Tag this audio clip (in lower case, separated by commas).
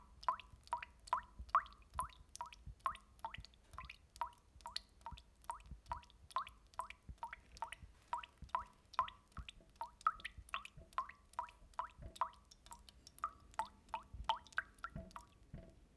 sink (filling or washing), liquid, faucet, drip, domestic sounds